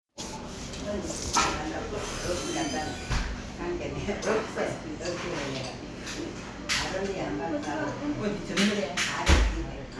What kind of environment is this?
crowded indoor space